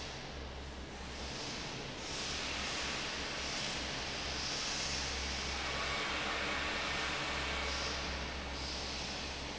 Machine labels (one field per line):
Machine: fan